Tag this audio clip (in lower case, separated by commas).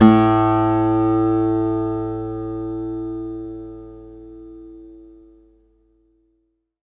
music, guitar, acoustic guitar, plucked string instrument, musical instrument